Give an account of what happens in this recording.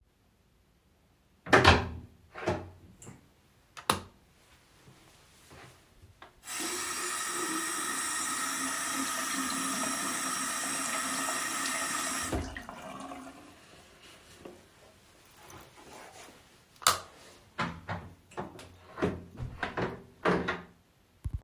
I opened the bathroom door, turned on the light, and used running water at the sink. Before leaving, I switched the light off and closed the door.